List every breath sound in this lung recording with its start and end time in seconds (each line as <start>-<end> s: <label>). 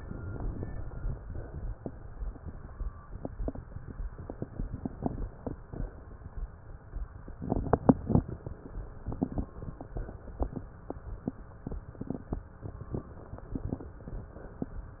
0.00-1.17 s: inhalation
1.21-1.77 s: exhalation
4.14-5.51 s: inhalation
5.55-6.12 s: exhalation